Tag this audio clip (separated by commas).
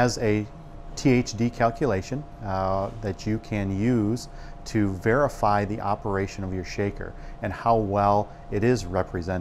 Speech